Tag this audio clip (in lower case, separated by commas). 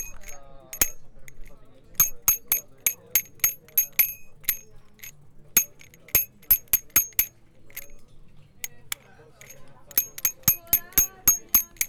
bicycle, bicycle bell, alarm, bell, vehicle